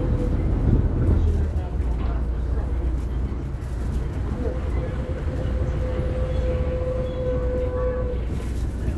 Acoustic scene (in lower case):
bus